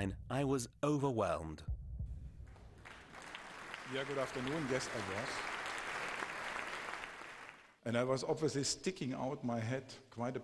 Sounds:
Speech

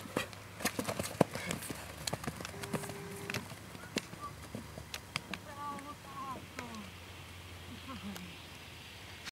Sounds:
Clip-clop, horse clip-clop

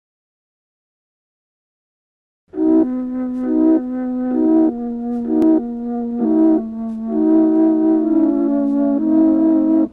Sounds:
Music

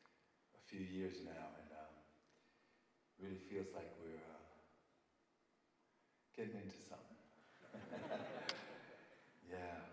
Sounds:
Speech

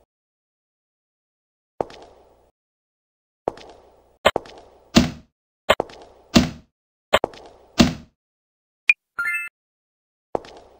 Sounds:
inside a small room

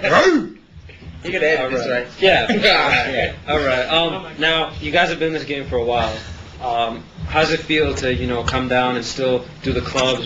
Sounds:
Speech

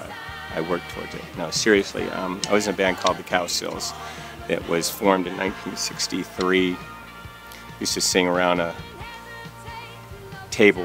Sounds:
Speech, Music

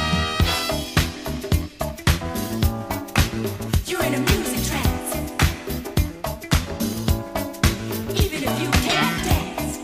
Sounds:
Music, Pop music

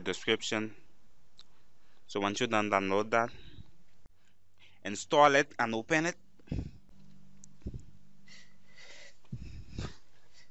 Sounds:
Speech

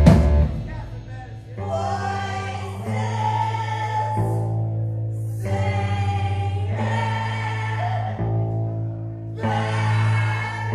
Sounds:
Speech, Music

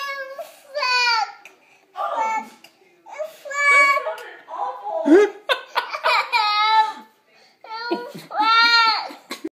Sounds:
Speech, moan

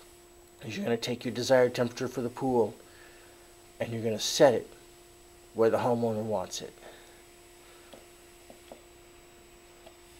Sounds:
Speech

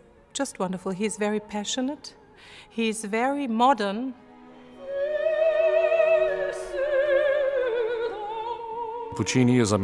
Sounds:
Opera

